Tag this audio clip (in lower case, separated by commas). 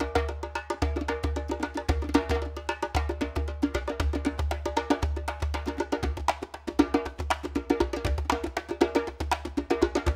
playing djembe